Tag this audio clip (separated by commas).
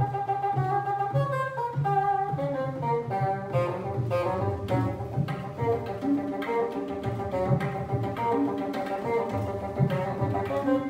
playing bassoon